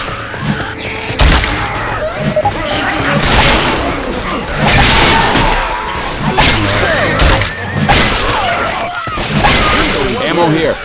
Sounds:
Speech

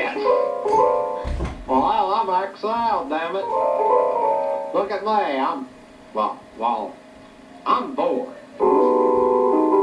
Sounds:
Speech, Music

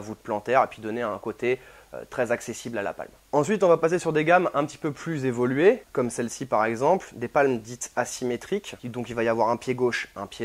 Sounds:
Speech

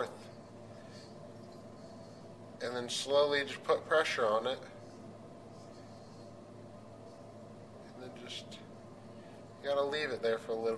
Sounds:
Speech

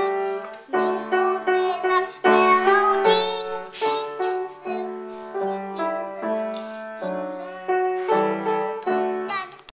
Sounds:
Child singing, Music

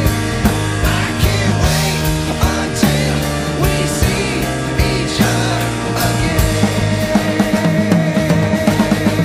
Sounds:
Independent music

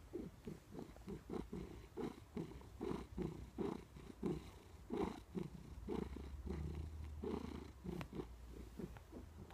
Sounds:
pets, Cat, Animal, Purr, inside a small room

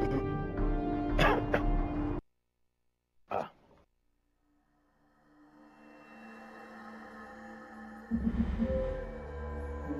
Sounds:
Music, Speech

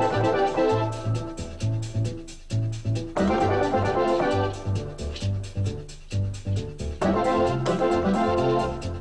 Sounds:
Music

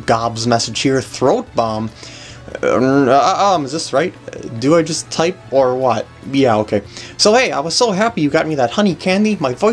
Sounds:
Music, Speech

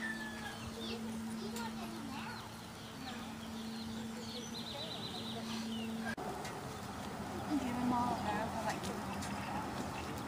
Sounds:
Animal, Speech

